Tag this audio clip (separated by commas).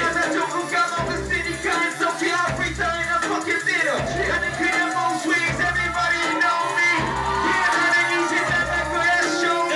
Music